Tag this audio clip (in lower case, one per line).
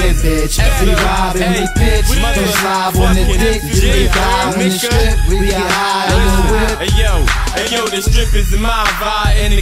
music
funk